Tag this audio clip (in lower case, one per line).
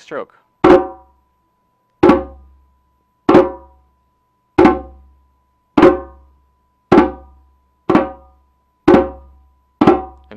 playing djembe